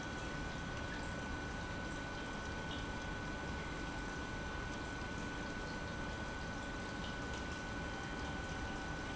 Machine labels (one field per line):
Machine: pump